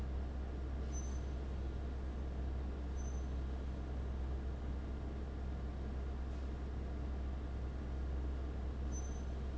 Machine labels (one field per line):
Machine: fan